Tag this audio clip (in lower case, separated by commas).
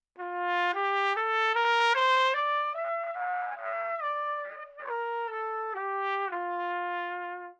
music, brass instrument, musical instrument, trumpet